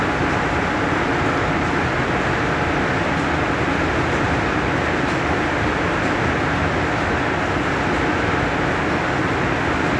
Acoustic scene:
subway station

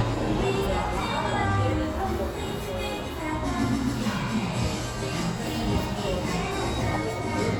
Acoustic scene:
cafe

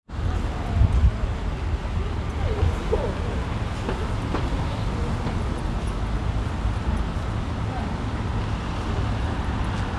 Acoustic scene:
residential area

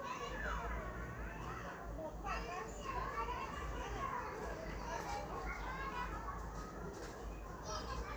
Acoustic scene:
residential area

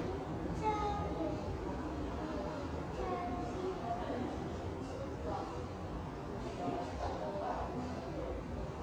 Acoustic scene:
subway station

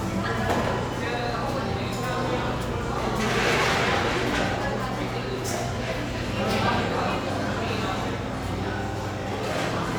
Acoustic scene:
cafe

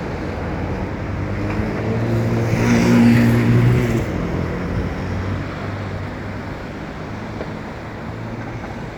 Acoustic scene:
street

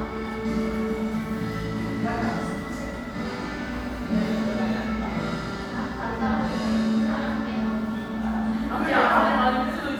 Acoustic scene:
crowded indoor space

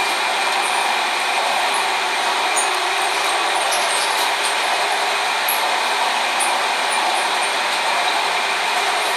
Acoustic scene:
subway train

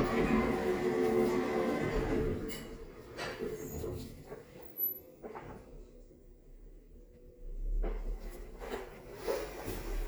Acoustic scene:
elevator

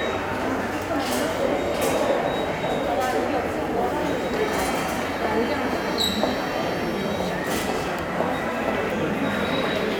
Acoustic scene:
subway station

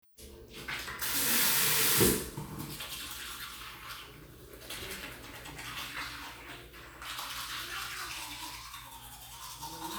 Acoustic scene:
restroom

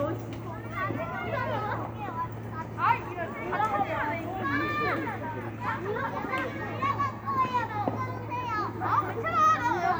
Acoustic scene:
residential area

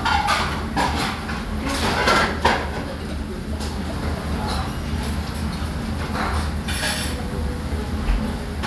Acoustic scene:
restaurant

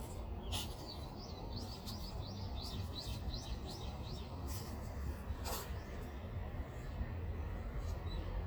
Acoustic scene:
street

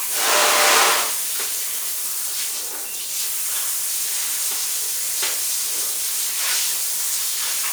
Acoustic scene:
restroom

